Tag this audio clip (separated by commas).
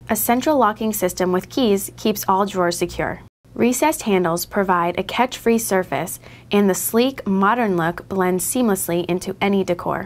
Speech